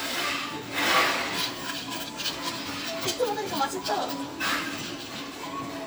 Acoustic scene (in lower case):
cafe